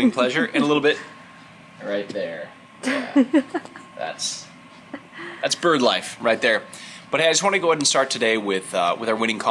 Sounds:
male speech
speech

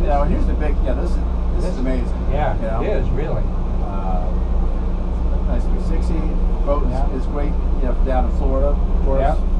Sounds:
speech
vehicle

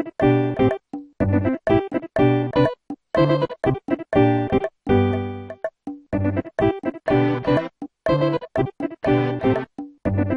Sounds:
music

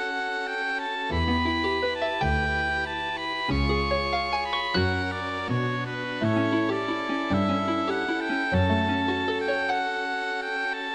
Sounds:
music

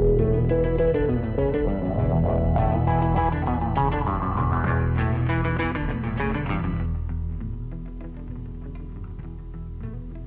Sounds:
music

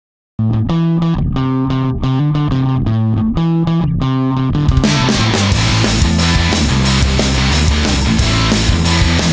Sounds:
effects unit
distortion
bass guitar
electric guitar

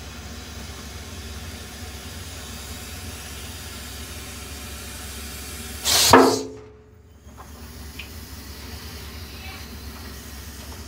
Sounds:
snake hissing

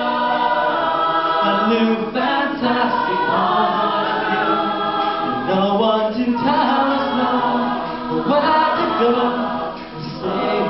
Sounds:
choir
vocal music
singing

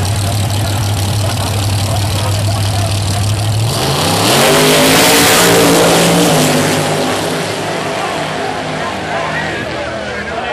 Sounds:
speech
car
vehicle

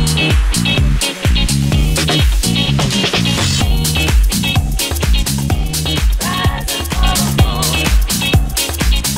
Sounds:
house music
music

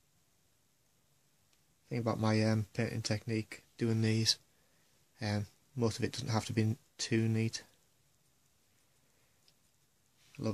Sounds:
speech

